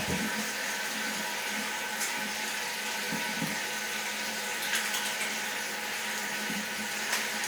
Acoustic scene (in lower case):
restroom